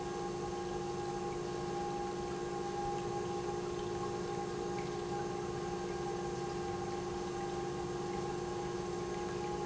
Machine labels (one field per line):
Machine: pump